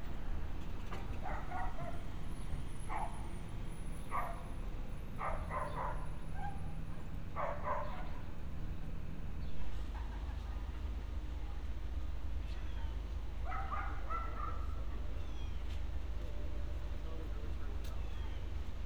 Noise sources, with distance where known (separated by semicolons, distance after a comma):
dog barking or whining